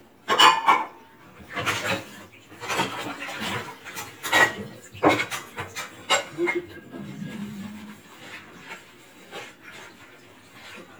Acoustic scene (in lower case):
kitchen